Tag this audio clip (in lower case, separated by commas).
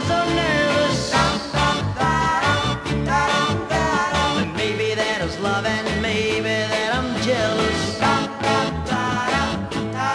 music